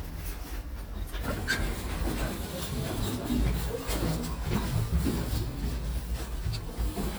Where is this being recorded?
in an elevator